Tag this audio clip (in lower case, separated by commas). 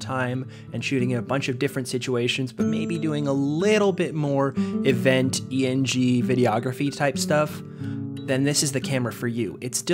music, speech